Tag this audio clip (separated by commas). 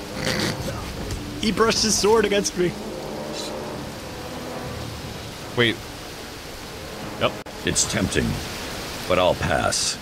Speech, Pink noise